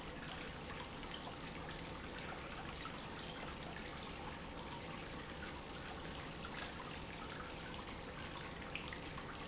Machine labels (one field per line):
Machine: pump